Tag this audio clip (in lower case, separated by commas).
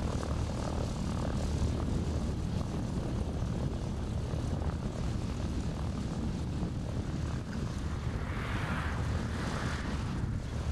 outside, rural or natural, vehicle, fixed-wing aircraft, aircraft